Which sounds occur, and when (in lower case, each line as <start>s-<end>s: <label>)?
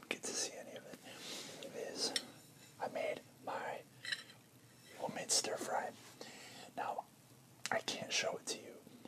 0.0s-1.0s: whispering
0.0s-9.0s: background noise
0.7s-0.9s: human sounds
1.0s-1.7s: breathing
1.5s-2.2s: whispering
2.0s-2.7s: silverware
2.7s-3.2s: whispering
3.4s-3.8s: whispering
4.0s-4.3s: silverware
4.6s-4.9s: silverware
4.9s-5.9s: whispering
6.1s-7.1s: whispering
6.1s-6.7s: breathing
7.6s-8.8s: whispering
7.6s-7.7s: human sounds
9.0s-9.0s: whispering